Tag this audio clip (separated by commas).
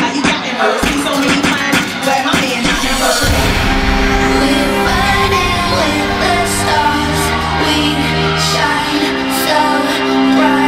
Music, inside a large room or hall